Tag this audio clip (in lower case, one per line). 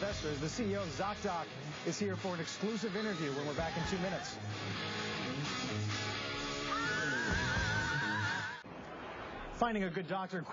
speech
music